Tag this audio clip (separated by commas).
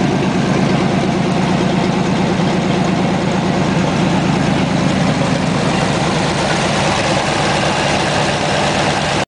Vehicle, Car